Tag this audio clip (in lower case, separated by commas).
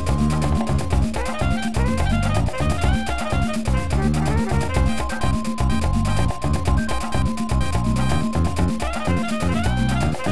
music